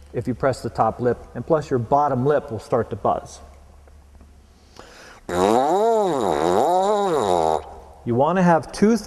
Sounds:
Speech

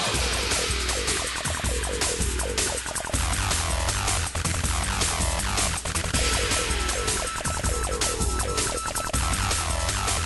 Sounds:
Music

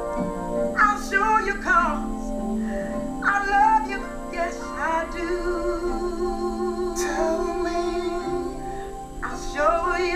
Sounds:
Music, inside a small room, Singing

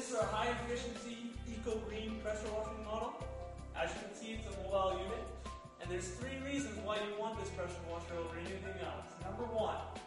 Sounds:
Speech, Music

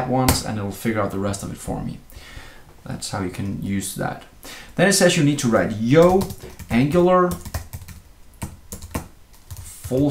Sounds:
Typing, Computer keyboard

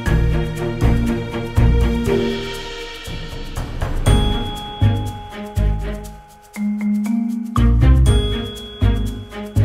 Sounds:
Music

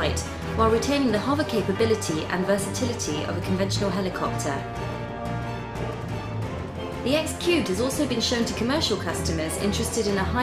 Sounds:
Speech, Music

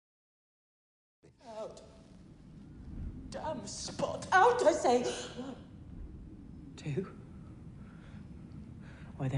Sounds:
Speech

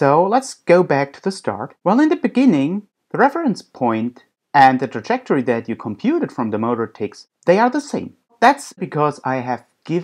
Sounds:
Speech

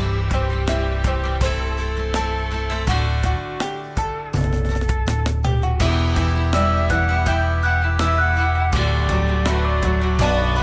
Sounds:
Music

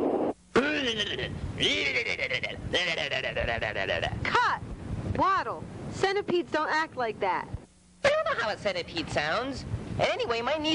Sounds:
Speech

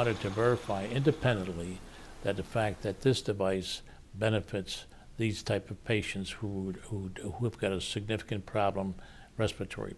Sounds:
Speech

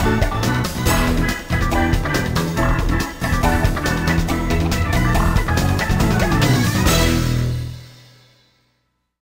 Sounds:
Video game music, Music

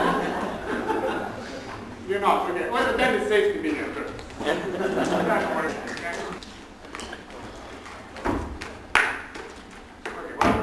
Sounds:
Speech, Thump

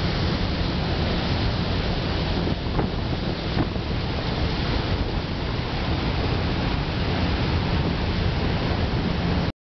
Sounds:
Boat, Motorboat, Vehicle

